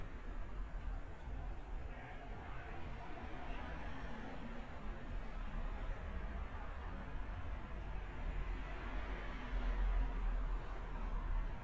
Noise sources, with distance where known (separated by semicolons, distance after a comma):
background noise